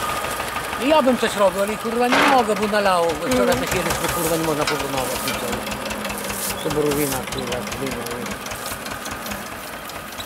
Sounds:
vehicle, vroom, speech

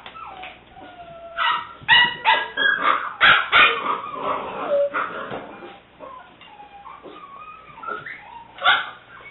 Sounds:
domestic animals, inside a small room, bark, animal, dog, dog barking, canids

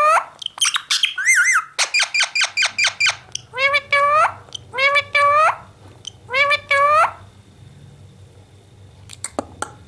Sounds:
parrot talking

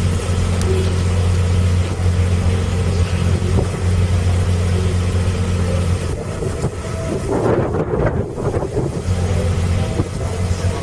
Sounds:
speedboat, water vehicle, vehicle, speedboat acceleration

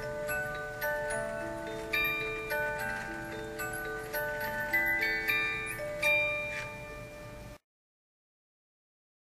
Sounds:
music

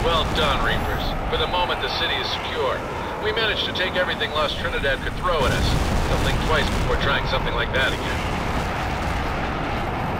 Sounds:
speech

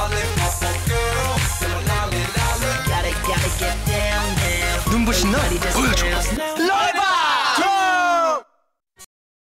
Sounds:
music

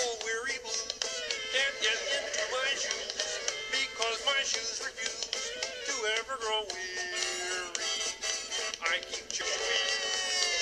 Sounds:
music

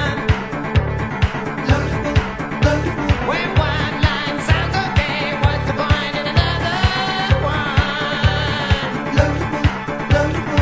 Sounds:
music

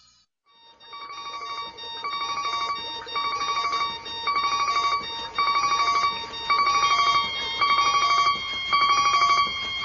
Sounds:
alarm clock

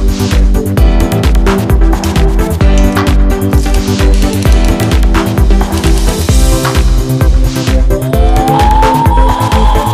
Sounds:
music

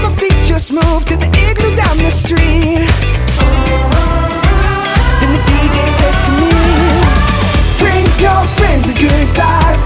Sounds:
happy music, rhythm and blues, music

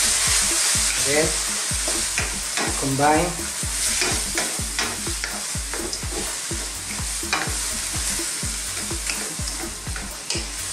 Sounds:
frying (food), stir

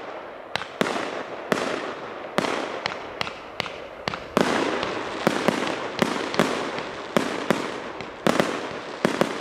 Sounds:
fireworks, fireworks banging

